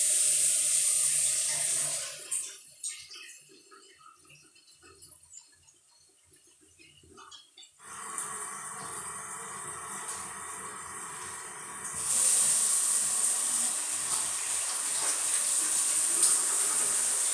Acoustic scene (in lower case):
restroom